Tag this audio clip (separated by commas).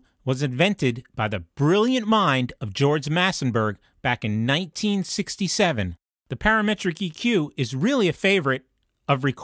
Speech